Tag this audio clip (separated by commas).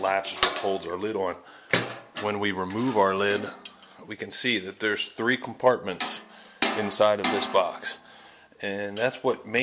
Speech